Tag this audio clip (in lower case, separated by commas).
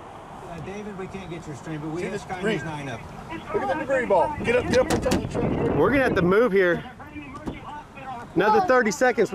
speech